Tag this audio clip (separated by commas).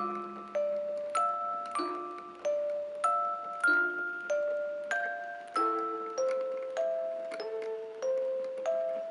Mallet percussion, xylophone, Glockenspiel